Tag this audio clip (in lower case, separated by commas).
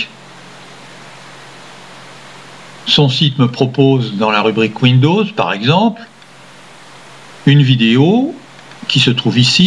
speech